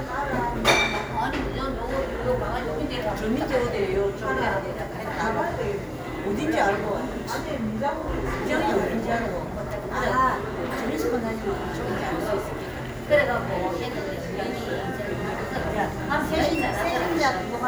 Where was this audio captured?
in a cafe